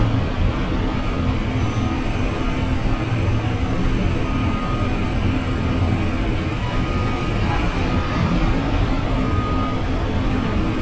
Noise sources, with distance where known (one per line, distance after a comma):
large-sounding engine, near
jackhammer, near
reverse beeper, near